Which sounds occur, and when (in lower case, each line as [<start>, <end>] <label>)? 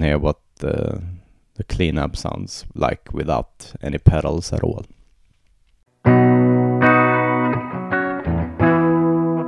[0.00, 6.03] background noise
[0.01, 0.29] man speaking
[0.52, 1.01] man speaking
[1.55, 3.44] man speaking
[3.56, 4.81] man speaking
[6.02, 9.45] music